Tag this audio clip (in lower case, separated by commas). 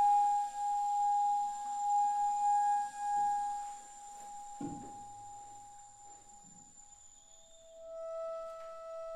flute, woodwind instrument